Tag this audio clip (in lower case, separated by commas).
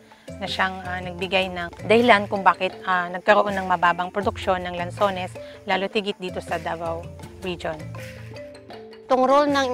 speech, music